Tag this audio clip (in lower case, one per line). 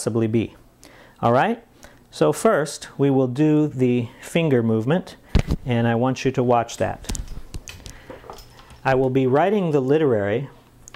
speech